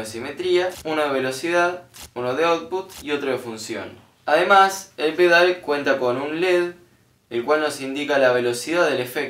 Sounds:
speech

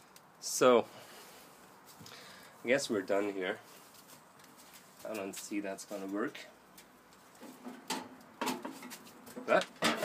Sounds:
speech

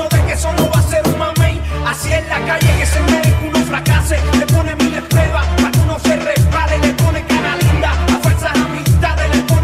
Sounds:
soul music
music
ska

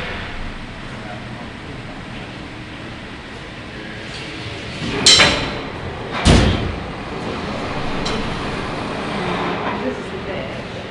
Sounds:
heavy engine (low frequency)

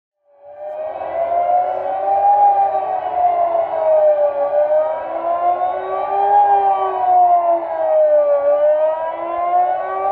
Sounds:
civil defense siren

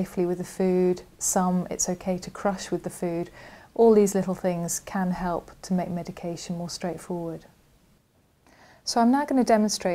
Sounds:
speech

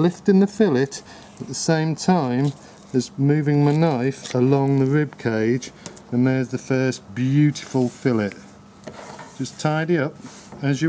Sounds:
speech

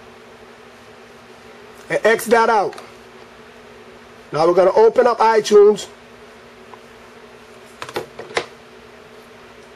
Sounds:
speech
inside a small room

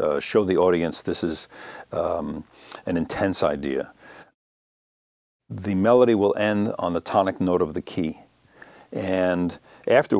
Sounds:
speech

